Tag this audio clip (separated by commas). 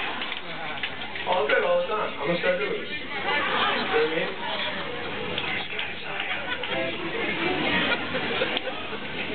Speech